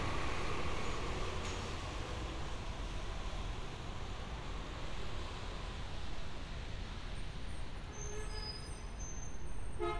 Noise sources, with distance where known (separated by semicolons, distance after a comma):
large-sounding engine, near; car horn, near